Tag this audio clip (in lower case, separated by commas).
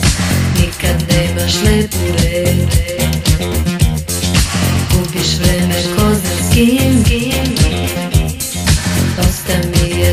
funk, music